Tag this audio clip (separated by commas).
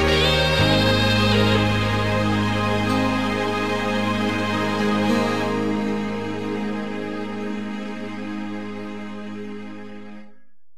Guitar, Musical instrument, Music, Plucked string instrument